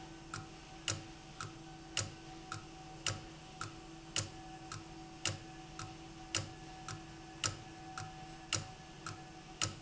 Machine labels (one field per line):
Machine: valve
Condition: abnormal